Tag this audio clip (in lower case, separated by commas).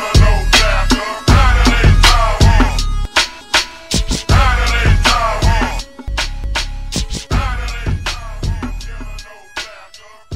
music